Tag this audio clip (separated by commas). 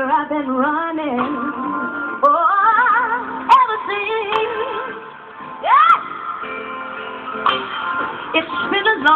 Gospel music, Music, Christian music